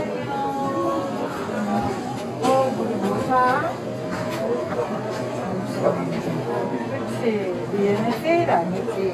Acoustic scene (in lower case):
crowded indoor space